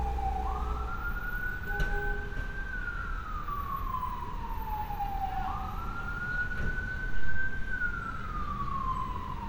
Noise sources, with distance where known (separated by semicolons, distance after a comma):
siren, far